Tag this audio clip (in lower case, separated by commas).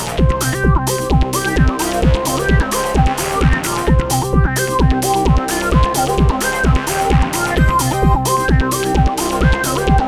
music